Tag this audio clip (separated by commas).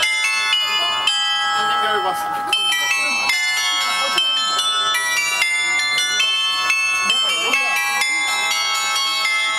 Music, Tick-tock, Speech